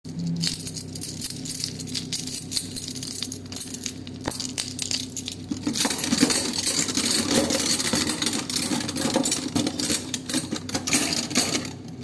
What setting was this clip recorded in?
kitchen